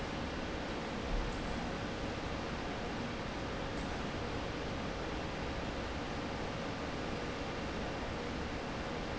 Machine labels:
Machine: fan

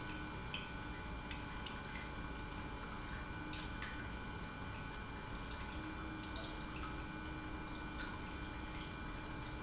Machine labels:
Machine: pump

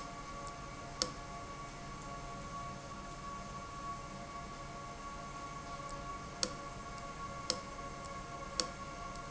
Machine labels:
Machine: valve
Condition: abnormal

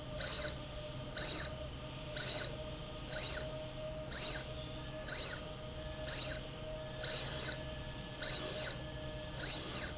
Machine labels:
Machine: slide rail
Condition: abnormal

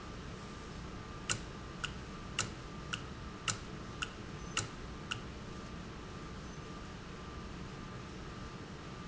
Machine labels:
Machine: valve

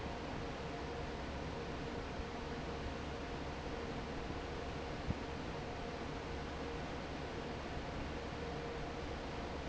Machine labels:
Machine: fan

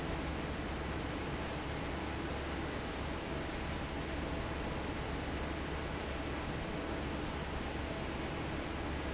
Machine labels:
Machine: fan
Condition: normal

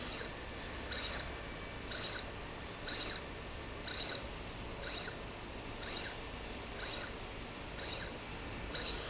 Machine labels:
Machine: slide rail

